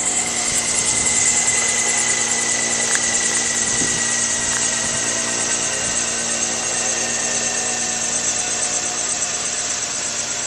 Helicopter blades are rotating